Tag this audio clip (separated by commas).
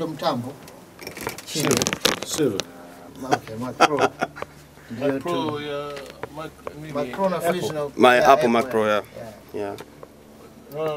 Speech